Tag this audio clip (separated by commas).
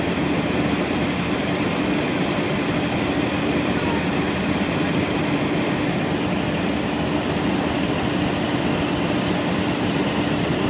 Crackle